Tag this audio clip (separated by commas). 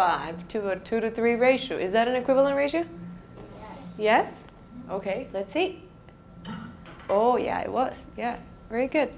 Speech